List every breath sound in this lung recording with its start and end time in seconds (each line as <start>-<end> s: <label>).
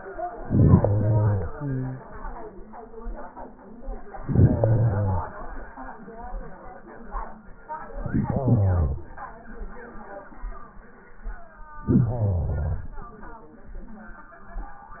0.43-1.54 s: inhalation
1.55-2.07 s: exhalation
4.11-5.32 s: inhalation
7.91-9.04 s: inhalation
11.83-12.96 s: inhalation